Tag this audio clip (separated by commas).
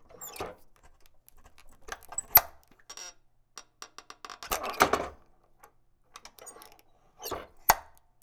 Squeak